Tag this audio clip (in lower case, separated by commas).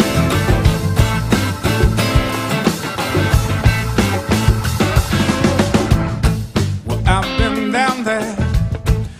music, rock music